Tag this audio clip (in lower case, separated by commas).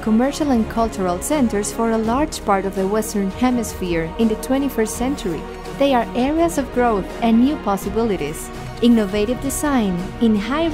music, speech